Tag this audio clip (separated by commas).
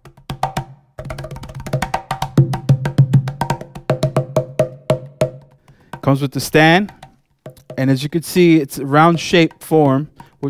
Speech, Music